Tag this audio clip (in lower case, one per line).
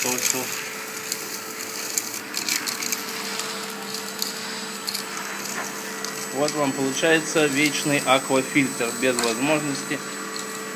vacuum cleaner